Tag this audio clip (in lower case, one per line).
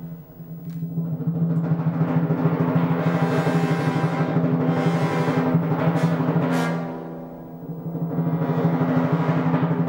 music
timpani